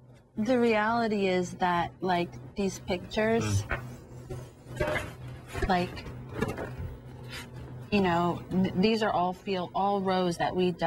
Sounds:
speech
inside a large room or hall

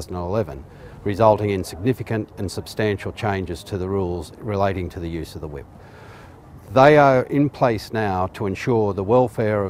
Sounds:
speech

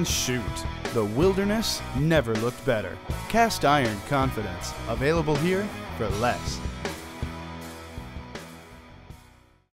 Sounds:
music
speech

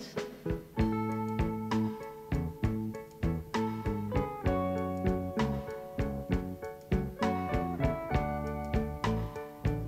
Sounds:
music

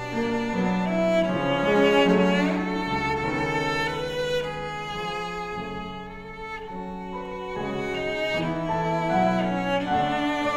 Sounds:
music

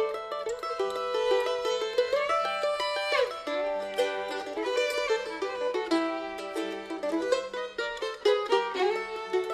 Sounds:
pizzicato
bowed string instrument
fiddle

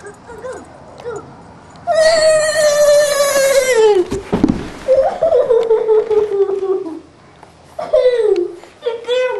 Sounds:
speech

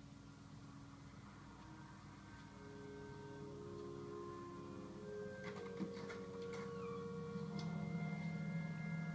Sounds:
music

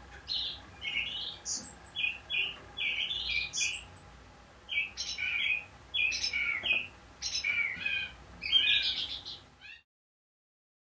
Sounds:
wood thrush calling

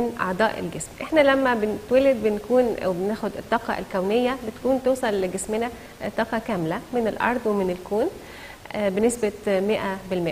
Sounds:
speech

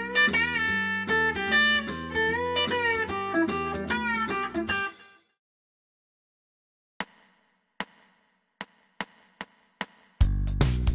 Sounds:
music

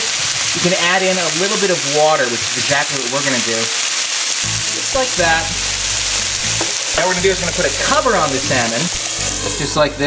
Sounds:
inside a small room
speech
music

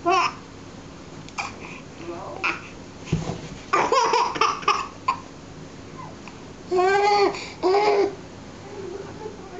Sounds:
speech

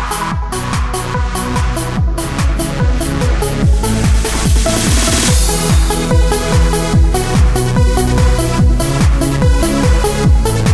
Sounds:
music
techno

